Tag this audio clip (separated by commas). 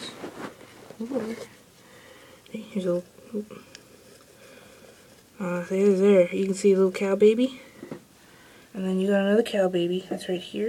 Speech